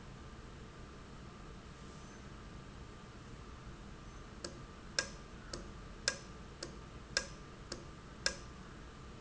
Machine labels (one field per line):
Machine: valve